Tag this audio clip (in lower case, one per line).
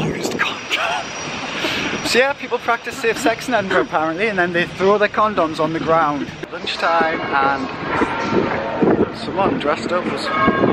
speech